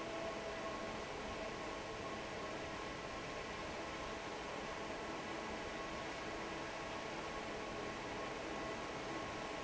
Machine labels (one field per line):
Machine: fan